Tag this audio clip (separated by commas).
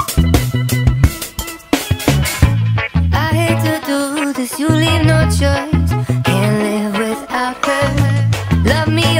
Funk, Music